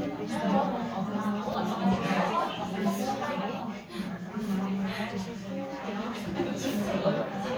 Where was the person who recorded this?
in a crowded indoor space